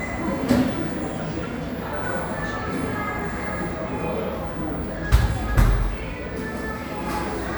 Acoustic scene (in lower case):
cafe